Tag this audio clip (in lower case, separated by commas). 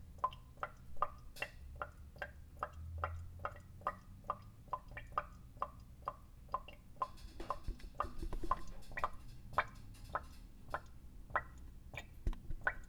sink (filling or washing), domestic sounds